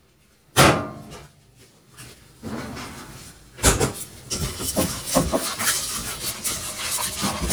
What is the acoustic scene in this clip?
kitchen